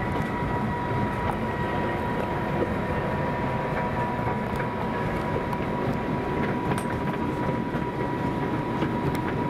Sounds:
vehicle
railroad car

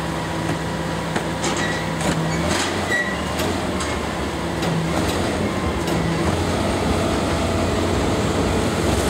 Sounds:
vehicle
truck

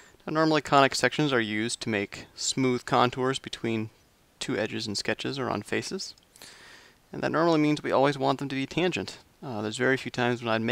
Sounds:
speech

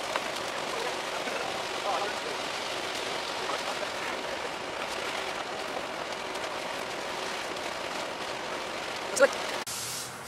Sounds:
speech

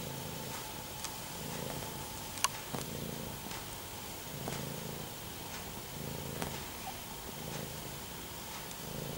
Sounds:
cat purring

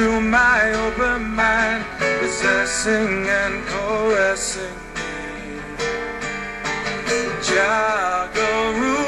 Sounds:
music
male singing

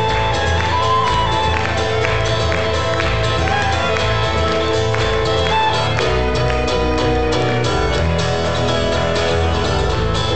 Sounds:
music

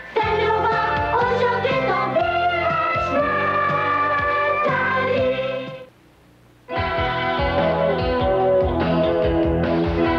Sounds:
music

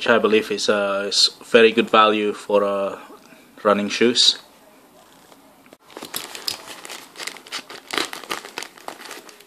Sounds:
speech

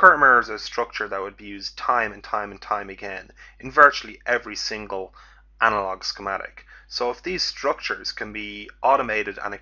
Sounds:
speech

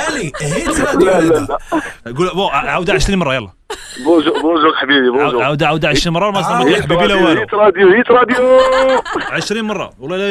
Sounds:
radio
speech

